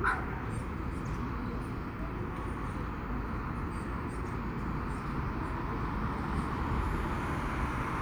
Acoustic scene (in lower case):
street